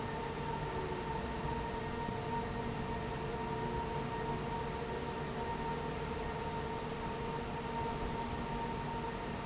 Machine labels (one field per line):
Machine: fan